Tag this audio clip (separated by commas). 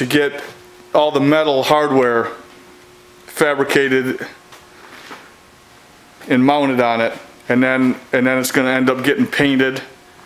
inside a small room, Speech